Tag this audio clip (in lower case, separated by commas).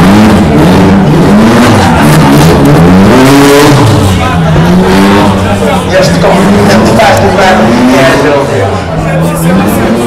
vehicle, car, speech, vroom